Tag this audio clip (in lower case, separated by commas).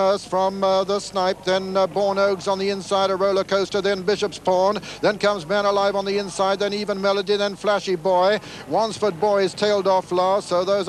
speech, horse, animal, clip-clop